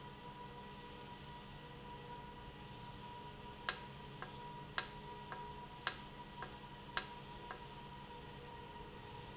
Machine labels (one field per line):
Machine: valve